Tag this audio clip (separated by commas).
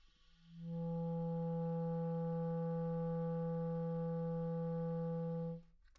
Musical instrument, Wind instrument, Music